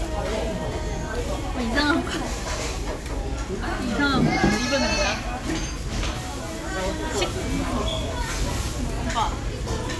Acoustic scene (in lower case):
restaurant